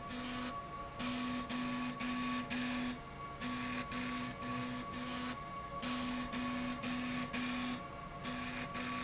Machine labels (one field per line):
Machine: slide rail